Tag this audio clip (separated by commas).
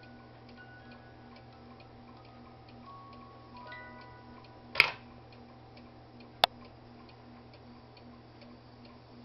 Tick-tock